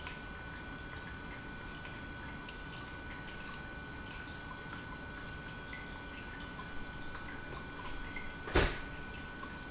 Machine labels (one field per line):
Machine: pump